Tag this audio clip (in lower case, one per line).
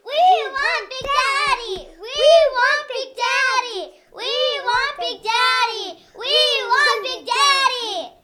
singing
human voice